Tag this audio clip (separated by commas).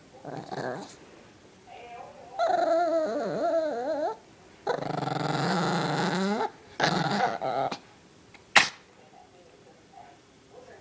Whimper (dog), Dog, Animal, Domestic animals, Yip